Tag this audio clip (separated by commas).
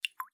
Water, Liquid, Drip